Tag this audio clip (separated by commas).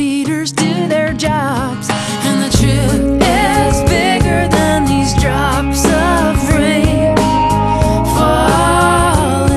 Music, Jazz, Tender music